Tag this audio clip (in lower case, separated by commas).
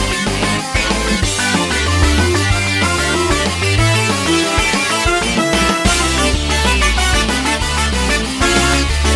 music, video game music